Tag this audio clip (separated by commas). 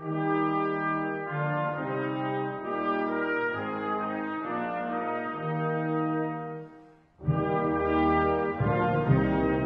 Music